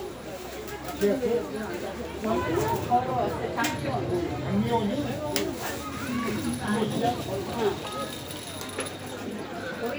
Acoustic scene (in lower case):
park